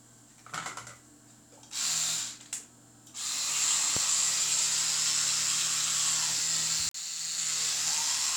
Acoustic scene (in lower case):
restroom